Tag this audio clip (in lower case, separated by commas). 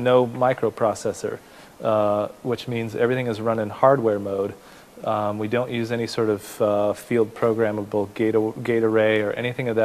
speech, inside a small room